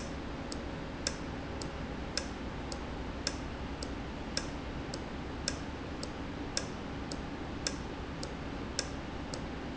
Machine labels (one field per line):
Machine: valve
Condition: normal